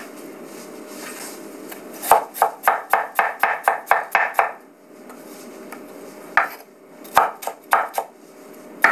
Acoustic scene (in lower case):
kitchen